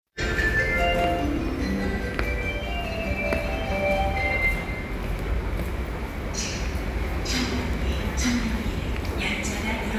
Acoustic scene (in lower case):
subway station